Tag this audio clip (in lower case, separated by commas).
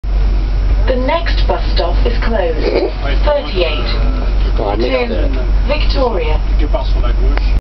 speech, vehicle, bus